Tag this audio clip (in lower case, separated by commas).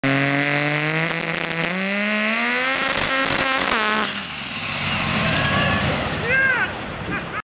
medium engine (mid frequency), vehicle, revving, car